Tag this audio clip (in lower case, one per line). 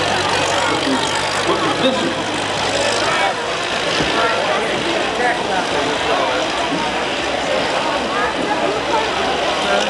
speech